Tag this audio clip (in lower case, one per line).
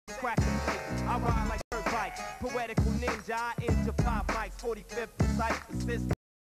music